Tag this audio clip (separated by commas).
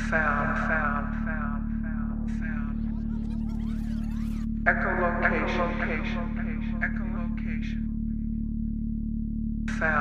Music, Speech